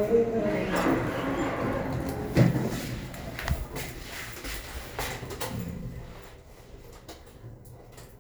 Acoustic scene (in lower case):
elevator